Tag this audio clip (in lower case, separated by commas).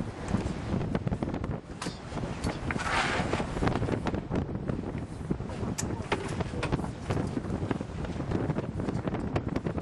sailing